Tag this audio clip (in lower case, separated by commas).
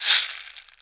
percussion, musical instrument, rattle (instrument), music